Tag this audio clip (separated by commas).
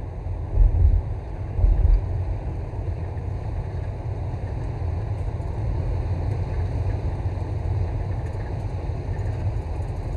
Field recording